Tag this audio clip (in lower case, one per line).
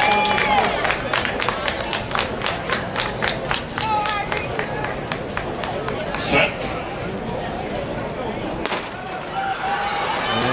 speech
run